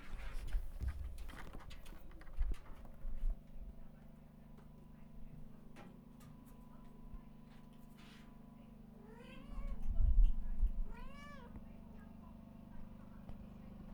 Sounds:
meow
pets
cat
animal

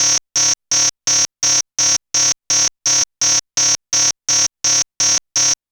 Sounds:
alarm

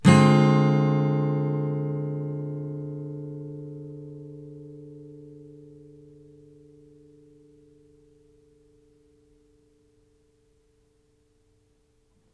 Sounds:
music
plucked string instrument
guitar
strum
musical instrument

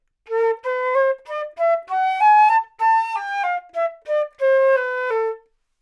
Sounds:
wind instrument
music
musical instrument

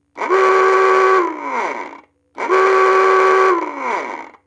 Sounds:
alarm

